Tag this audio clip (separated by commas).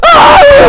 Human voice, Yell, Screaming, Shout